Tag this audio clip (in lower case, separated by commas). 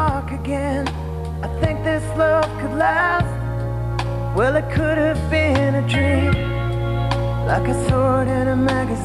music, theme music